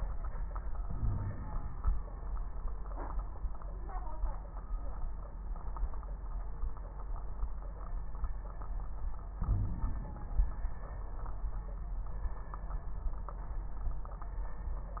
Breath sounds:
0.84-2.00 s: inhalation
0.93-1.36 s: wheeze
9.41-10.71 s: inhalation
9.41-10.71 s: crackles

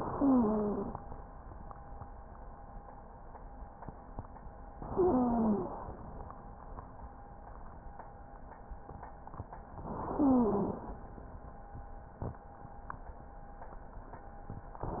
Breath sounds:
0.00-0.94 s: inhalation
0.12-0.94 s: wheeze
4.76-5.80 s: inhalation
4.88-5.70 s: wheeze
9.84-10.88 s: inhalation
10.14-10.88 s: wheeze
14.82-15.00 s: inhalation

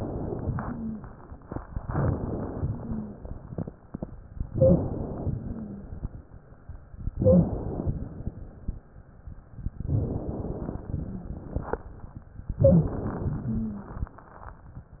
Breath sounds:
0.49-1.06 s: exhalation
0.49-1.06 s: wheeze
1.84-2.64 s: inhalation
2.69-3.23 s: wheeze
2.69-3.49 s: exhalation
4.48-4.93 s: wheeze
4.48-5.37 s: inhalation
5.43-5.96 s: wheeze
5.43-6.15 s: exhalation
7.13-7.57 s: wheeze
7.13-7.88 s: inhalation
7.97-8.71 s: exhalation
9.87-10.89 s: inhalation
10.87-11.90 s: exhalation
10.87-11.90 s: crackles
12.62-12.96 s: wheeze
12.62-13.53 s: inhalation
13.51-14.00 s: wheeze
13.51-14.19 s: exhalation

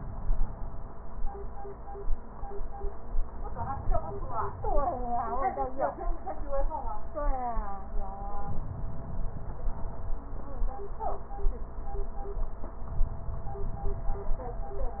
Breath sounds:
8.44-10.17 s: inhalation

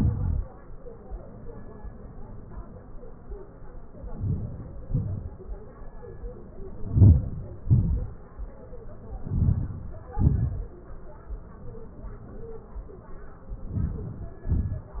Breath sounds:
4.21-4.86 s: inhalation
4.98-5.35 s: exhalation
6.84-7.50 s: inhalation
7.70-8.14 s: exhalation
9.23-9.96 s: inhalation
10.25-10.67 s: exhalation
13.87-14.47 s: inhalation
14.57-15.00 s: exhalation

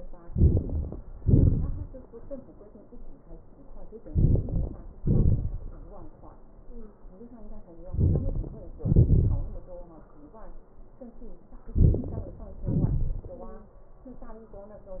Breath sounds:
0.22-0.95 s: inhalation
1.22-1.95 s: exhalation
4.09-4.78 s: inhalation
5.01-5.70 s: exhalation
7.88-8.66 s: inhalation
8.84-9.43 s: exhalation
11.80-12.41 s: inhalation
12.69-13.45 s: exhalation

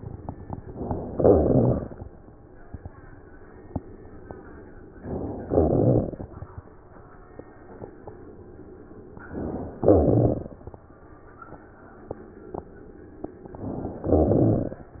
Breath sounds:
0.64-1.15 s: inhalation
1.19-2.14 s: crackles
1.19-2.15 s: exhalation
4.98-5.52 s: inhalation
5.50-6.54 s: crackles
5.52-6.58 s: exhalation
9.16-9.83 s: inhalation
9.79-10.79 s: exhalation
9.79-10.79 s: crackles
13.46-14.05 s: inhalation
14.07-14.92 s: exhalation
14.07-14.92 s: crackles

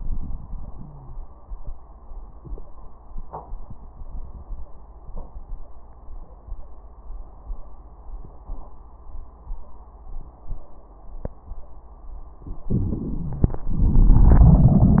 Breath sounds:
12.62-13.67 s: crackles
12.65-13.68 s: inhalation
13.67-15.00 s: exhalation
13.67-15.00 s: crackles

